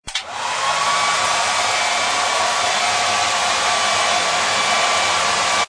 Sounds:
Domestic sounds

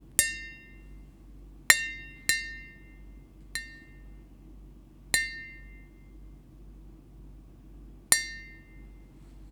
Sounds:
Tap

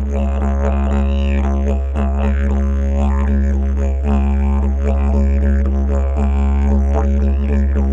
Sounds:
Music, Musical instrument

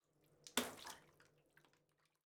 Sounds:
Water, home sounds, Splash, Liquid, Bathtub (filling or washing)

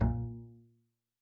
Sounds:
Bowed string instrument, Musical instrument, Music

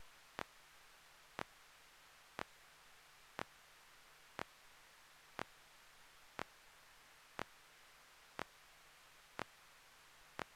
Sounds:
Mechanisms, Clock

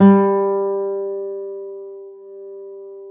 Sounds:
Music, Plucked string instrument, Guitar, Acoustic guitar, Musical instrument

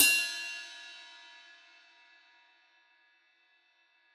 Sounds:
Cymbal, Musical instrument, Percussion, Hi-hat, Music

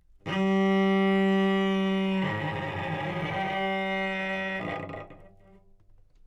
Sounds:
Musical instrument, Music, Bowed string instrument

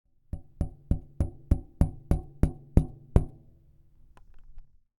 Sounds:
Tap

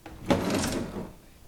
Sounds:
Drawer open or close, Domestic sounds

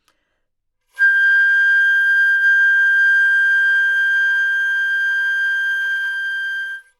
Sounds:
Musical instrument, Music, woodwind instrument

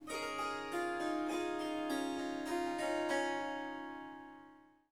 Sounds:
Music, Musical instrument, Harp

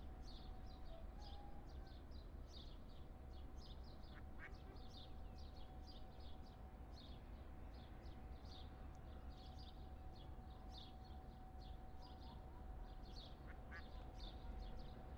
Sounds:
livestock, Fowl, Animal

